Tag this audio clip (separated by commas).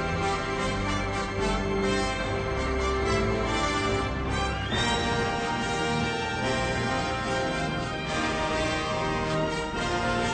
Music